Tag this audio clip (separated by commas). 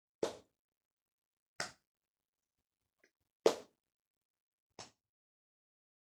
Clapping, Hands